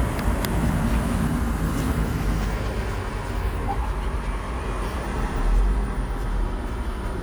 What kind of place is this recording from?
bus